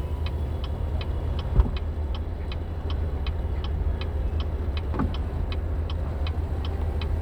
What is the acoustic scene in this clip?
car